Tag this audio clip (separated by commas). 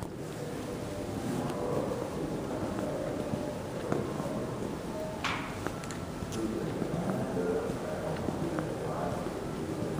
Speech, Walk